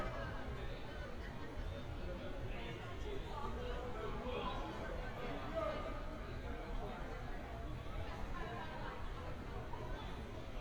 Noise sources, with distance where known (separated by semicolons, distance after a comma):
person or small group talking